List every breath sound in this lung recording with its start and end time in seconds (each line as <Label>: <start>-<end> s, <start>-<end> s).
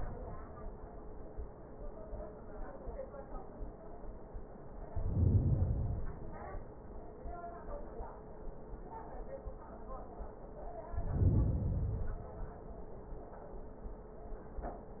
Inhalation: 4.80-6.30 s, 10.87-12.29 s